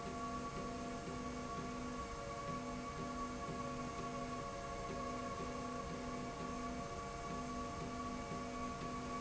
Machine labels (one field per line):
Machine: slide rail